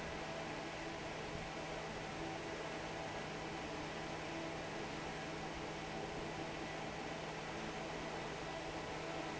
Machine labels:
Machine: fan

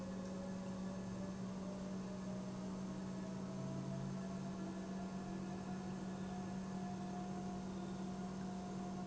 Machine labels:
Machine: pump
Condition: normal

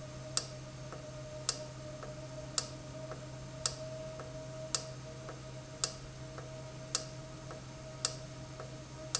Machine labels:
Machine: valve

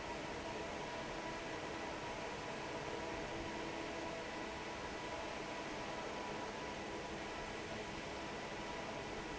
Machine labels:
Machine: fan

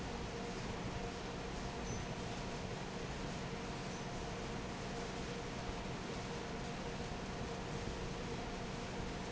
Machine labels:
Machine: fan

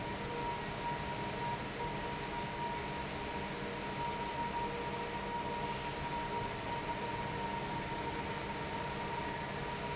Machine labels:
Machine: fan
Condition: abnormal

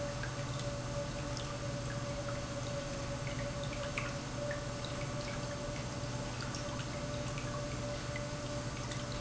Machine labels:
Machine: pump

